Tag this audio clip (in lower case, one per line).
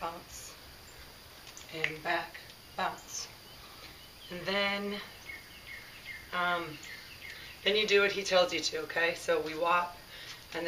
environmental noise